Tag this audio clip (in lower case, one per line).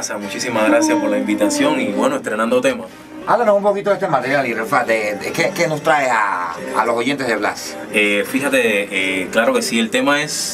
music
speech